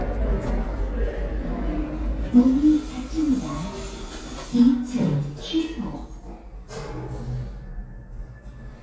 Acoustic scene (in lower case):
elevator